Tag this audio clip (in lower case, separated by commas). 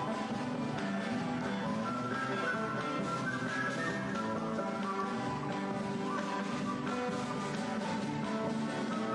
background music, music